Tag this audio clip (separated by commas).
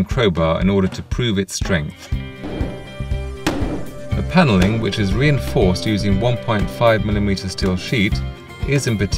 Music, Speech